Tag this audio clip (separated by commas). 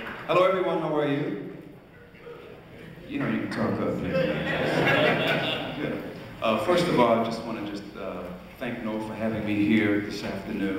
Speech